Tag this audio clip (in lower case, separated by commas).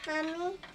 human voice, kid speaking, speech